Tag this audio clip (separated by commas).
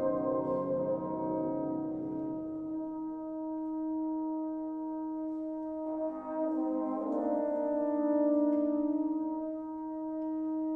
Music, Musical instrument